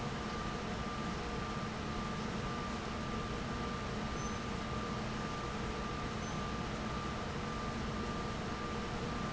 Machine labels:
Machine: fan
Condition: abnormal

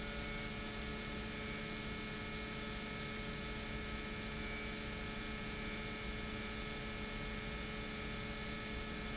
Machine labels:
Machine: pump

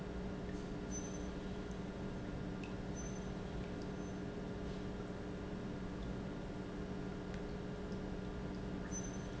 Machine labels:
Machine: pump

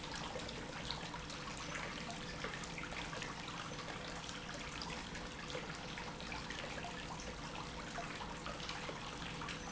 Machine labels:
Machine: pump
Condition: normal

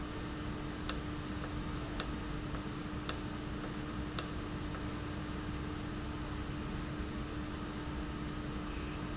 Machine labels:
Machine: valve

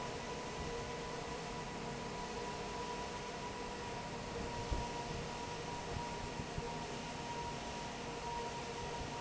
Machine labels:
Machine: fan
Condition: normal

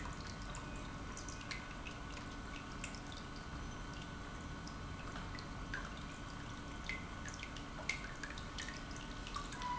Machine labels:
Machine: pump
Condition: normal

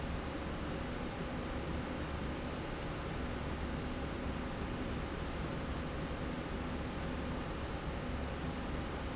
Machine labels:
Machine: slide rail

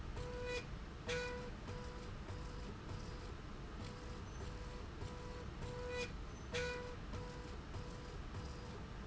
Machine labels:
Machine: slide rail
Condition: normal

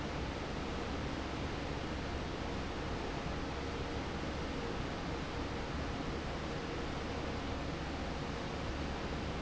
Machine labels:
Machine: fan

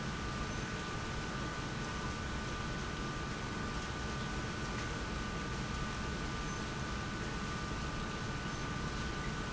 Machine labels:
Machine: pump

